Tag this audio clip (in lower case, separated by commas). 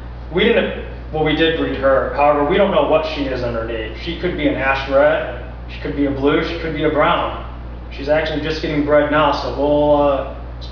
speech